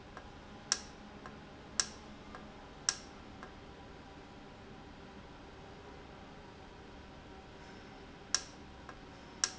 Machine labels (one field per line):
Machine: valve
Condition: normal